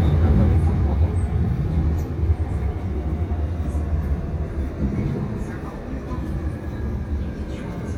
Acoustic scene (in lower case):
subway train